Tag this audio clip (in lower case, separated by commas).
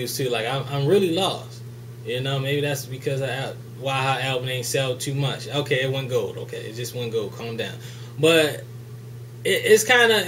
speech